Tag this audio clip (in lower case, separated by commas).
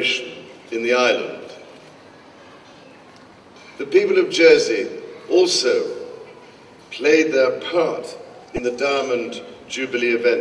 speech, male speech